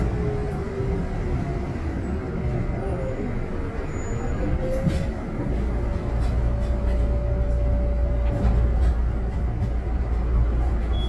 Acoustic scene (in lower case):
bus